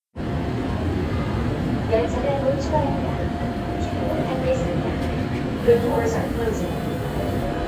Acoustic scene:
subway train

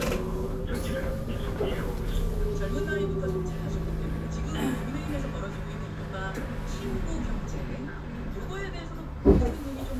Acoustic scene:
bus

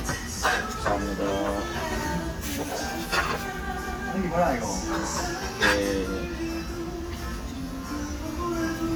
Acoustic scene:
restaurant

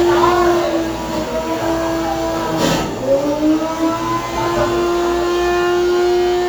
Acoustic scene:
cafe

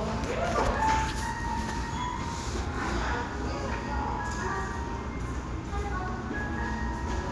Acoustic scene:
restaurant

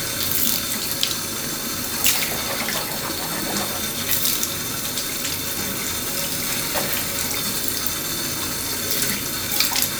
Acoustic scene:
restroom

